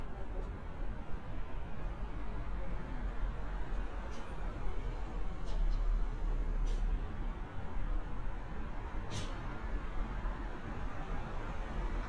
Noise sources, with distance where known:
medium-sounding engine

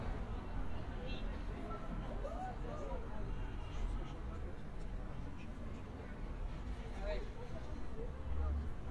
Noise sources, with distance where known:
person or small group talking, near

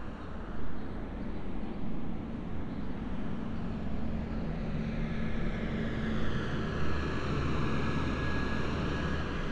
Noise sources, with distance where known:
engine of unclear size

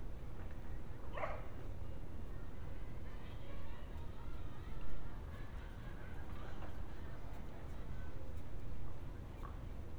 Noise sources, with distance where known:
unidentified human voice, far
dog barking or whining, near

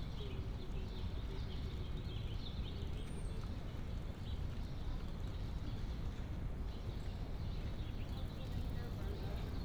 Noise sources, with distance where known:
background noise

